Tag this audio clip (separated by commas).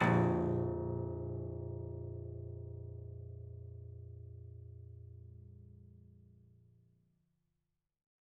Music, Keyboard (musical), Piano, Musical instrument